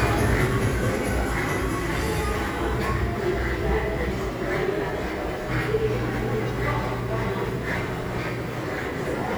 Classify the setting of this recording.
crowded indoor space